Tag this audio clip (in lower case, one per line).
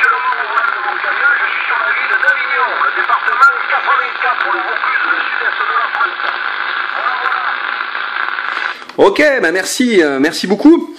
speech
radio